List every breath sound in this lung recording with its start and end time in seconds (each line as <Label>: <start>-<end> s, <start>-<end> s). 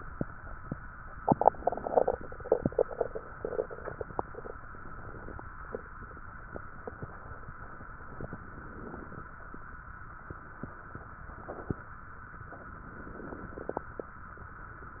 Inhalation: 1.19-2.31 s, 4.34-5.47 s, 8.18-9.31 s, 12.49-13.61 s